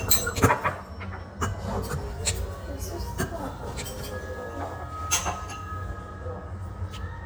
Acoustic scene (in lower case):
restaurant